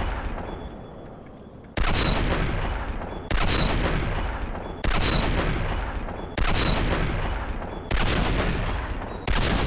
The sound of six gunshots being fired in a row